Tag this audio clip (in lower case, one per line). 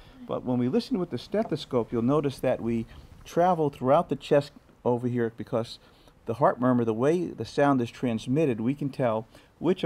speech